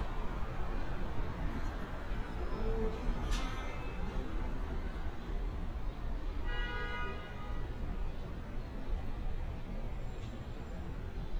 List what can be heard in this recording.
non-machinery impact, car horn